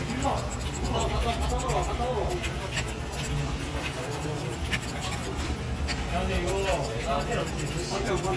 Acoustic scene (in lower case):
crowded indoor space